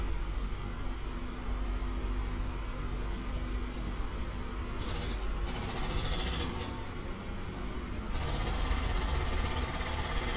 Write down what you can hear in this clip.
jackhammer